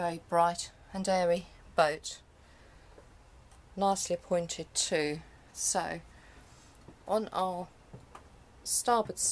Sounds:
speech

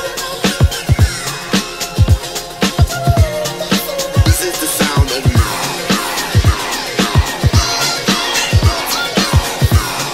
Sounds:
music, speech

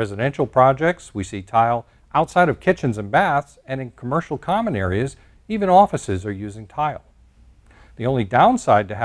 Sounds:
speech

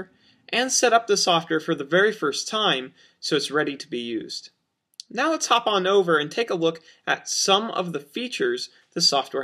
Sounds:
speech

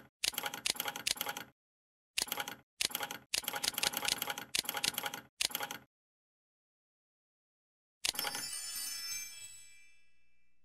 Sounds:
music

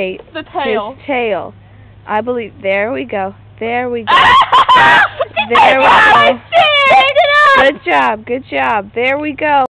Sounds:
speech

